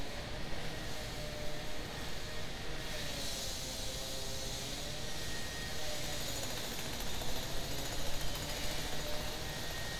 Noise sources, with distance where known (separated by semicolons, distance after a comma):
unidentified powered saw, far